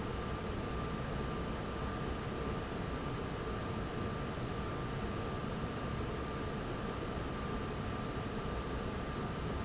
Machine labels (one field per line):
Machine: fan